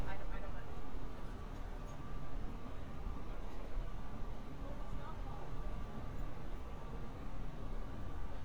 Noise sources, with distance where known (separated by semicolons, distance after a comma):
person or small group talking